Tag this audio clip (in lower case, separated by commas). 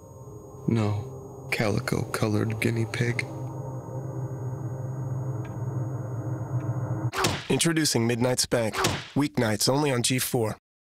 music, thump, speech